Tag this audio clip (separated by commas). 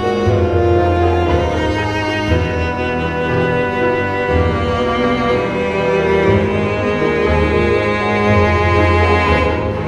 Theme music, Music